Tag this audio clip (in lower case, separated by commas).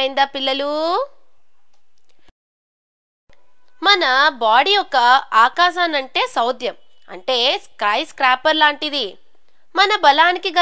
speech